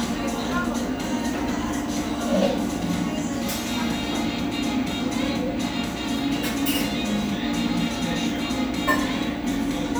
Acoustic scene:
cafe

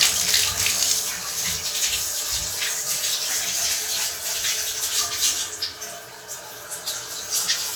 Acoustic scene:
restroom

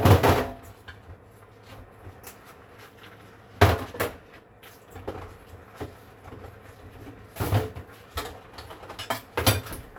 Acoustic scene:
kitchen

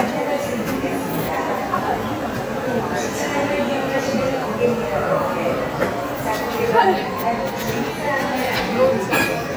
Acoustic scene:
cafe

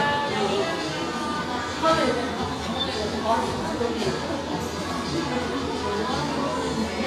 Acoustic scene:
cafe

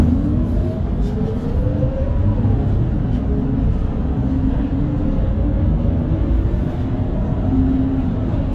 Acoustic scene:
bus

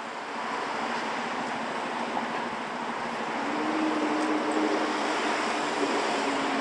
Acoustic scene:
street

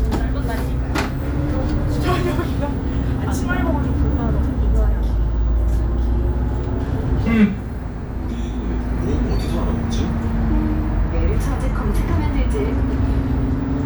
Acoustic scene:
bus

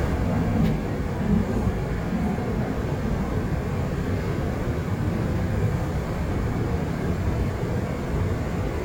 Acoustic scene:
subway train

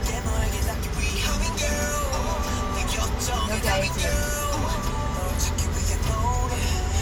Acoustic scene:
car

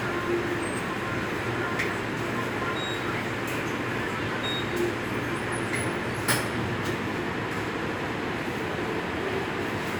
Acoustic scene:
subway station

